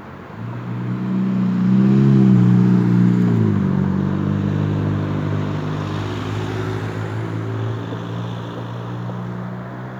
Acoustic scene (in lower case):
street